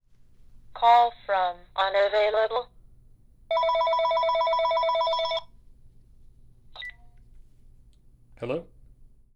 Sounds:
alarm, telephone

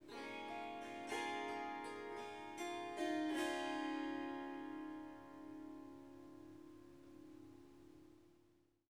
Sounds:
musical instrument, music, harp

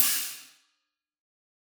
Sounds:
hi-hat, percussion, music, musical instrument, cymbal

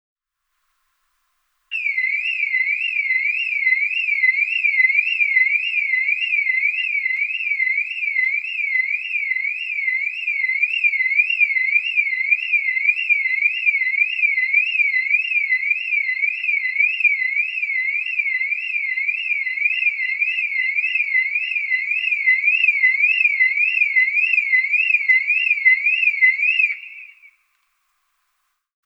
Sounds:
motor vehicle (road), car, alarm, vehicle

